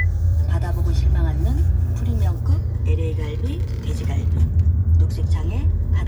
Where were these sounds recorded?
in a car